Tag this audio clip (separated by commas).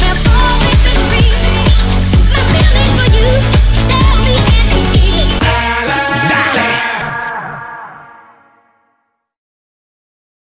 Music